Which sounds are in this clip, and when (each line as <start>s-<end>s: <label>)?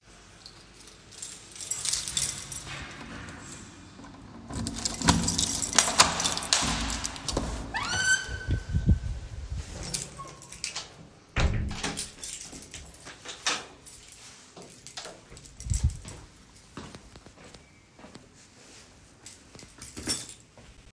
0.0s-20.9s: keys
4.5s-13.8s: door
14.5s-20.5s: footsteps